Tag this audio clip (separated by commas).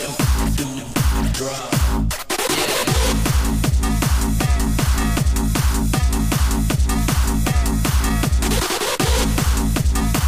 Electronic music, Techno, Music